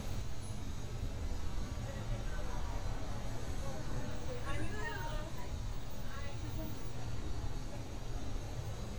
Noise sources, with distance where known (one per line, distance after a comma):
person or small group talking, near